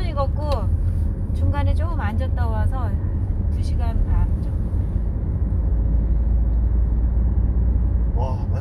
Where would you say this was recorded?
in a car